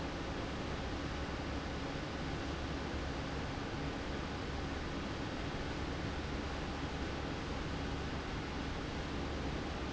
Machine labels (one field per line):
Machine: fan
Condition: abnormal